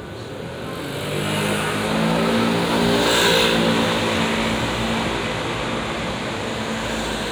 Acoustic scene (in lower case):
street